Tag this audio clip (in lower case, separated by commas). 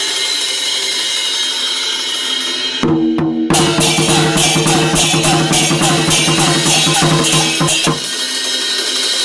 percussion, music